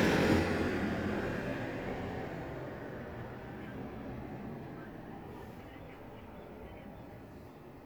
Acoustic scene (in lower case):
residential area